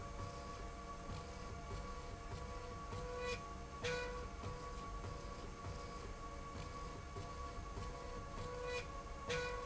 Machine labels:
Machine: slide rail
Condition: normal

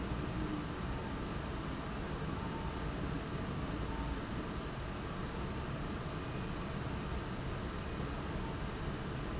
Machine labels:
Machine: fan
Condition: abnormal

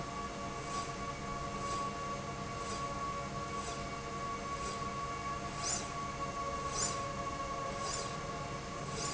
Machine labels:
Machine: slide rail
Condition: normal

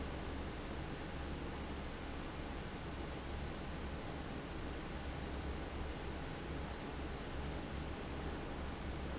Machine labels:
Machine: fan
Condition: abnormal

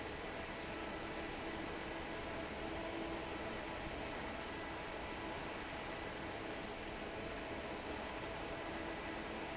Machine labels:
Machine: fan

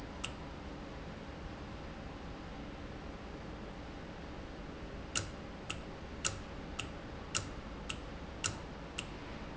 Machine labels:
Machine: valve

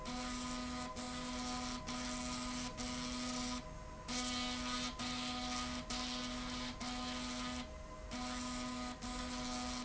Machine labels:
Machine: slide rail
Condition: abnormal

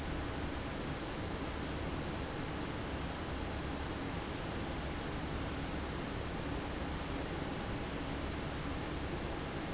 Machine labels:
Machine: fan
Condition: abnormal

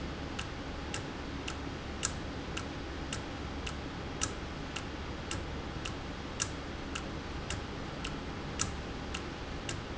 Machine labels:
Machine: valve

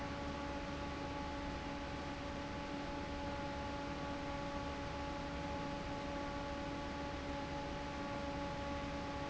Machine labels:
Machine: fan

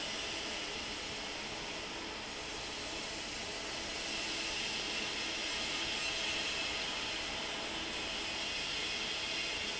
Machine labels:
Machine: fan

